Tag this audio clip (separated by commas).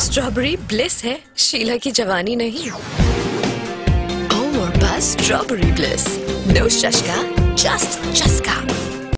Speech, Music